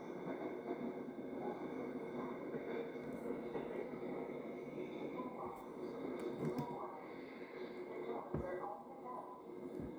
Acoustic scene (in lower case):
subway train